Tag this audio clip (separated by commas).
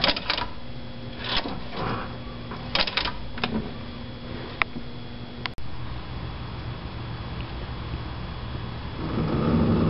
Engine